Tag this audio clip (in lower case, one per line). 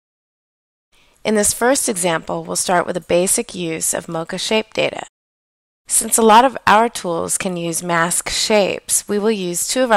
speech